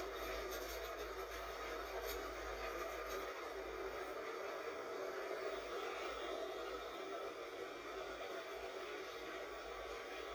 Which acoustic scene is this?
bus